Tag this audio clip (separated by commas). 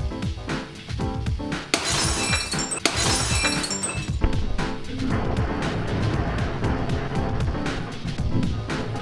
Shatter, Music, Glass